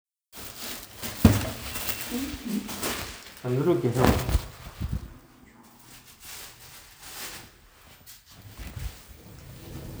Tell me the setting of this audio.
elevator